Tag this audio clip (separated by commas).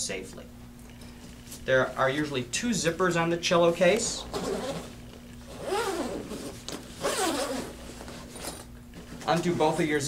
Speech